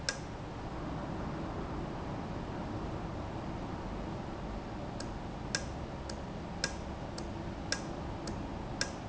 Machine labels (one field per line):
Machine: valve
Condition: normal